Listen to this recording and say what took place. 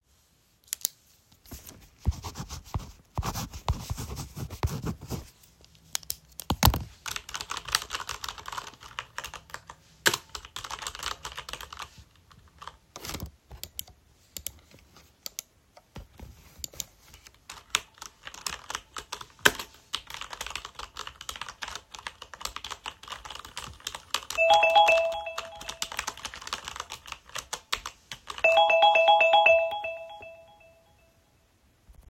I clicked my pen and wrote some notes on my paper. I typed something on my computer from my keyboard and also clicked on some buttons with my mouse. While typing, my alarm started ringing.